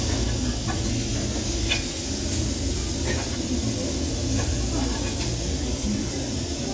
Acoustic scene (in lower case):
restaurant